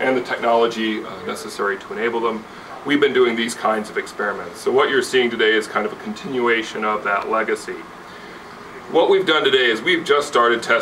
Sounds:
Speech

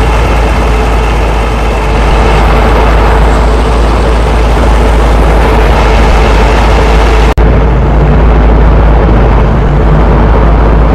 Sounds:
Car

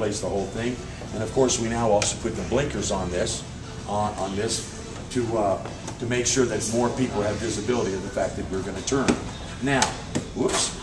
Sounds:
Speech

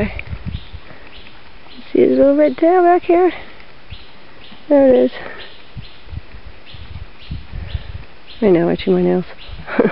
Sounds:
outside, urban or man-made, Speech

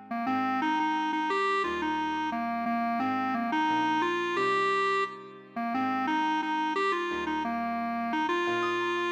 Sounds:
Musical instrument, Music

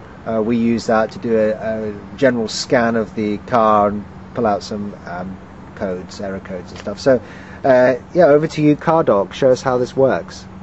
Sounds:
Speech

